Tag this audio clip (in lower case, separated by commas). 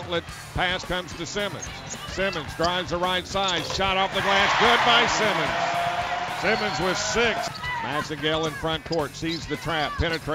basketball bounce